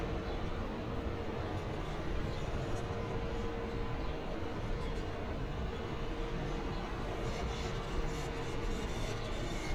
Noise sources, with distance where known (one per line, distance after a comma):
engine of unclear size